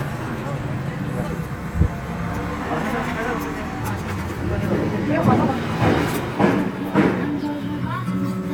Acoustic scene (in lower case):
street